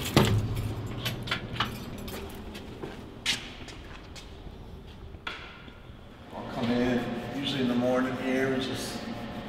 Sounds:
Speech

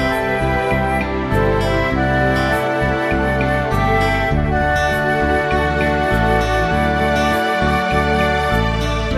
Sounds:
Music

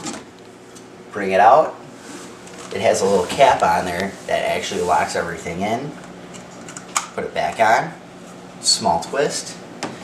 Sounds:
Speech

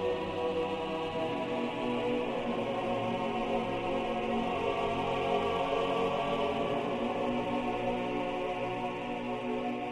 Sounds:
Music, New-age music

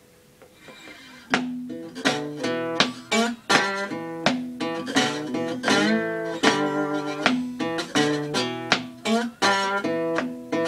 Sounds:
Music, Guitar, Plucked string instrument, Musical instrument

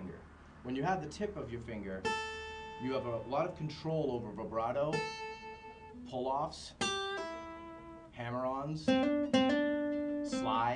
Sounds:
Strum, Music, Speech, Plucked string instrument, Acoustic guitar, Guitar, Musical instrument

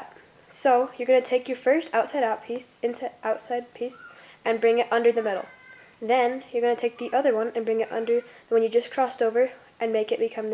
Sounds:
Speech

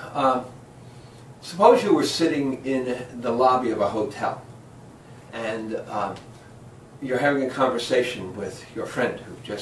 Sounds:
Speech, White noise

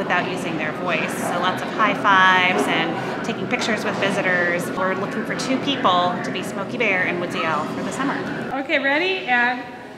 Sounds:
Speech

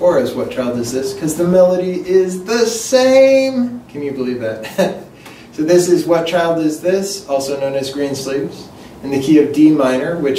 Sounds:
Speech

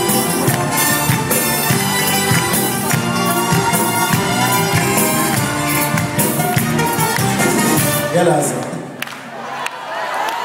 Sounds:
Funk, Jazz, Music, Speech

